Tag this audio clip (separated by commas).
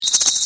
Rattle